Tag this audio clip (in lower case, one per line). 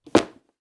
thump